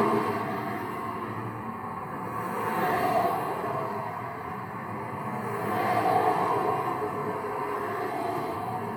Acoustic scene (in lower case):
street